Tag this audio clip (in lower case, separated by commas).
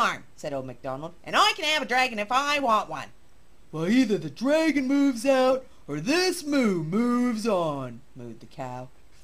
speech